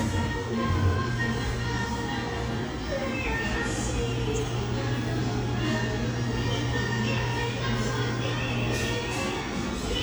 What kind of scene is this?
cafe